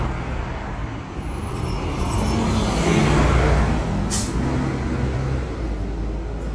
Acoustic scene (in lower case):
street